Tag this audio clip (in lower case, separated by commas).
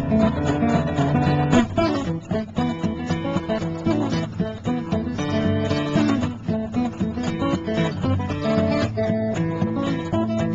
music